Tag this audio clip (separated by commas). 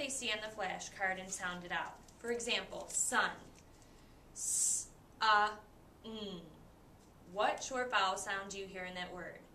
Speech